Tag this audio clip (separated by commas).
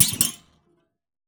Thump